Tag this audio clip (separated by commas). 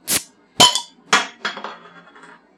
Hiss